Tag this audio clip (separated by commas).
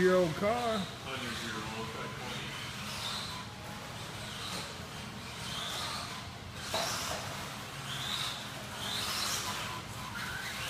Speech, Car